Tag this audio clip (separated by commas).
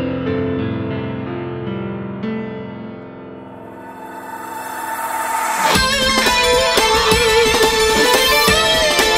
Sound effect, Music